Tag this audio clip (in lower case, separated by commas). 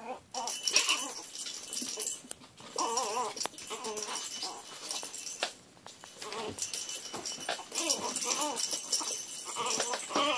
animal, dog